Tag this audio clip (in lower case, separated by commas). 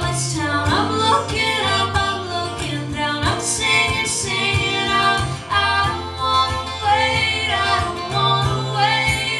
singing, female singing, music